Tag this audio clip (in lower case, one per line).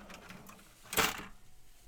mechanisms